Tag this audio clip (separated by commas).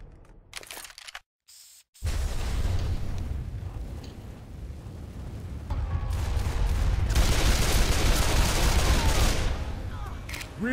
inside a public space, Music